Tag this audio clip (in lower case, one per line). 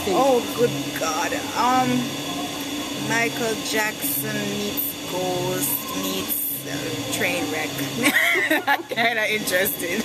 speech